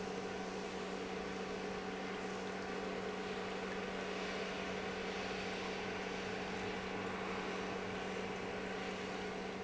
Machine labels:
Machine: pump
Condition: normal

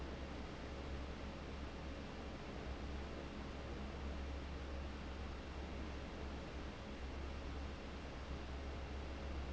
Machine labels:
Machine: fan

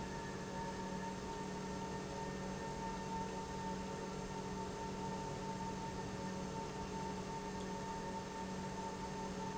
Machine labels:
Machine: pump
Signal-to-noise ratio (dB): 0 dB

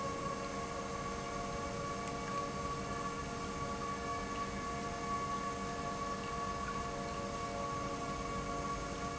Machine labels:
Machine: pump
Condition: normal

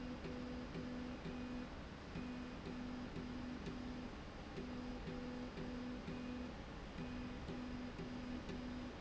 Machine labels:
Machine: slide rail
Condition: normal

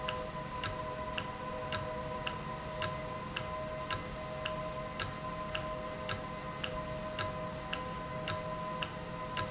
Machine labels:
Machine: valve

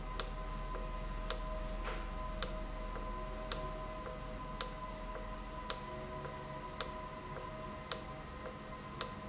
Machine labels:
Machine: valve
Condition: normal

